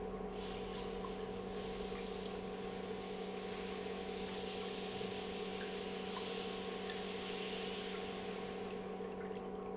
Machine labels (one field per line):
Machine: pump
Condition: normal